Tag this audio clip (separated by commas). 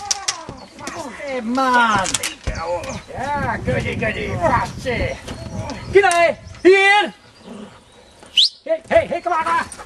Speech